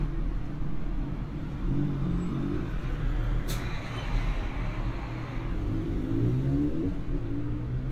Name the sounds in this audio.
medium-sounding engine